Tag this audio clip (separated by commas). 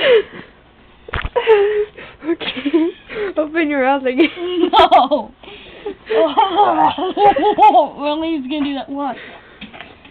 Speech